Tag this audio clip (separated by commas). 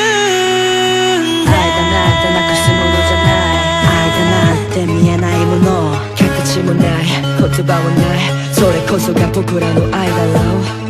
Music